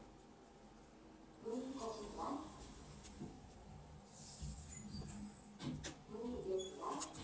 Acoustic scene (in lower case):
elevator